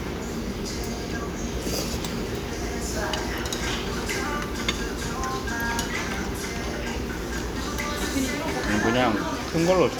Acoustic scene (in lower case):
restaurant